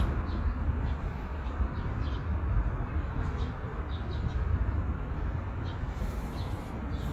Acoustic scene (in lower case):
park